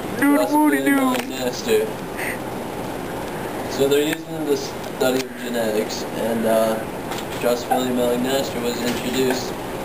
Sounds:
speech

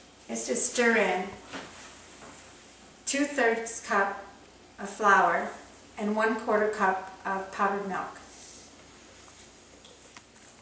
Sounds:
speech

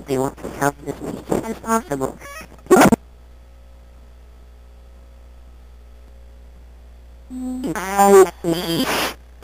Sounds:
speech synthesizer
speech

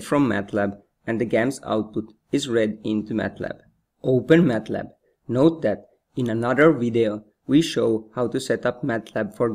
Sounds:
speech

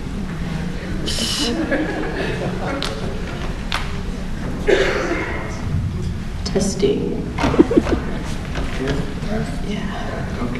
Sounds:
speech

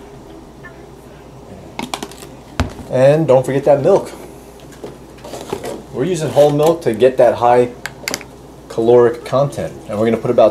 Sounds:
inside a small room
speech

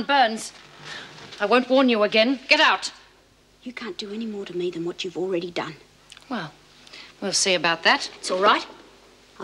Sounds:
speech

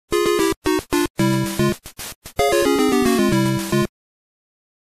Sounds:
music

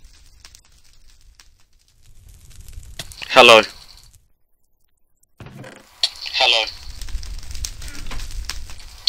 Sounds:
speech

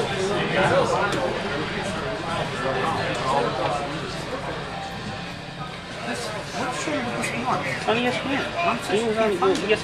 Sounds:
speech

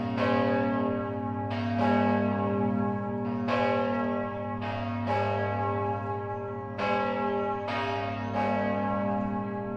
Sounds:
bell
church bell ringing
church bell

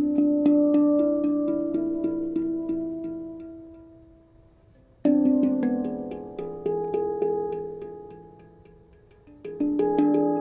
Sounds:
harmonic
music

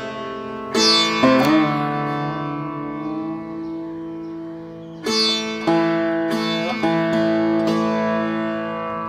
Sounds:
playing sitar

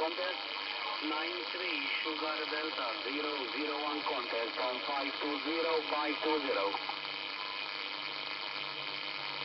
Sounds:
radio
speech

